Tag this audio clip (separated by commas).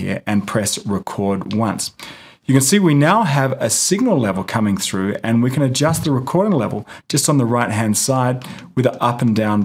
Speech